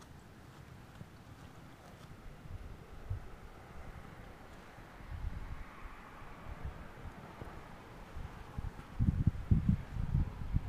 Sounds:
music

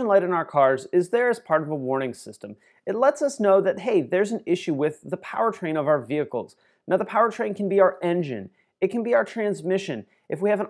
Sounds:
speech

